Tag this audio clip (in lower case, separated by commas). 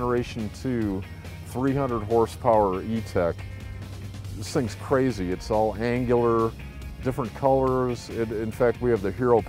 speech, music